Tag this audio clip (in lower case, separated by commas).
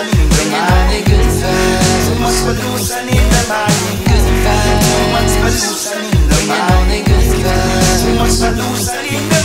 grunge